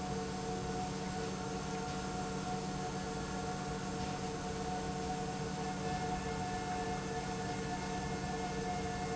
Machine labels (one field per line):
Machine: pump